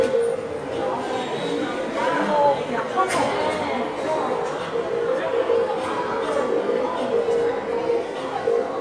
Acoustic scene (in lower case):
subway station